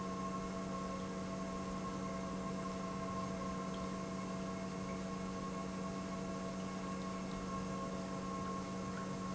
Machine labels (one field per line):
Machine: pump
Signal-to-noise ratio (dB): 0 dB